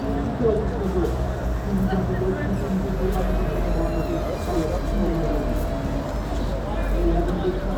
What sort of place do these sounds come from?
street